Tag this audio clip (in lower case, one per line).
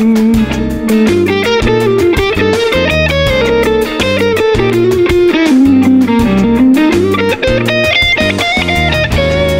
plucked string instrument
guitar
music
electric guitar
musical instrument